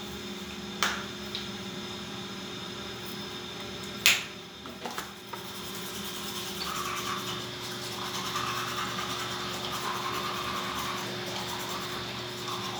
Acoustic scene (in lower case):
restroom